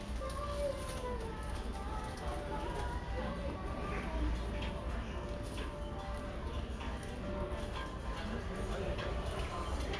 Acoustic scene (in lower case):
crowded indoor space